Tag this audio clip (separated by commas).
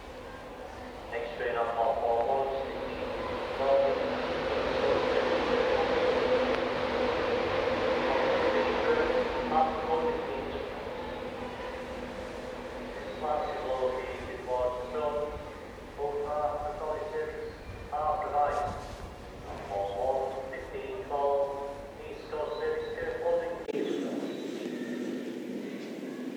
Rail transport, Train, Vehicle